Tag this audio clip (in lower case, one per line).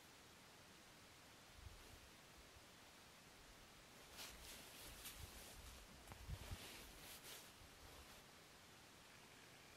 silence